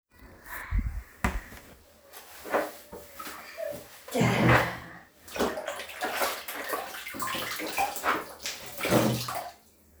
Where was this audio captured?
in a restroom